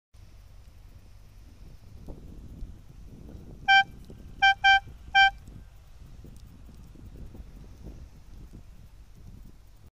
Vehicle honking